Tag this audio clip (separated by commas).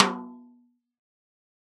Drum, Snare drum, Percussion, Music, Musical instrument